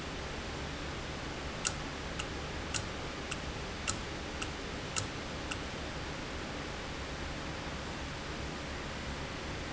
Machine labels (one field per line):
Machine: valve